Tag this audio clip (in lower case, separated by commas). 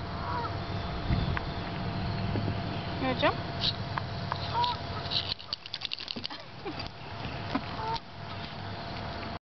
speech, kayak, water vehicle